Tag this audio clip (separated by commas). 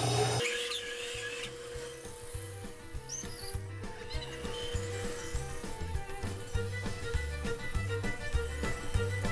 inside a small room, Music